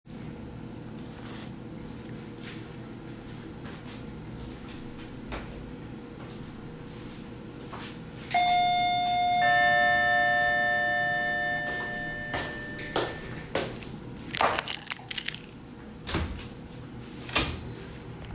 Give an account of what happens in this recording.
The doorbell rang while the phone was fixed on a shelf in the hallway. I walked to the key table, picked up the keys, and opened the door.